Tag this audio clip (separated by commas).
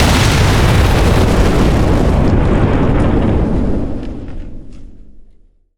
Boom, Explosion